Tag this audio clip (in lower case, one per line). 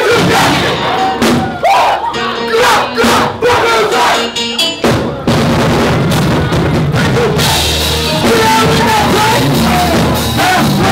orchestra
music